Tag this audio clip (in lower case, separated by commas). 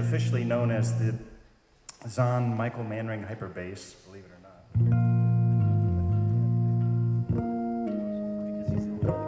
guitar, music, electric guitar, acoustic guitar, musical instrument, speech, plucked string instrument